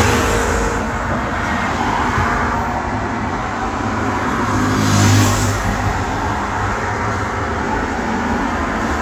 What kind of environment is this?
street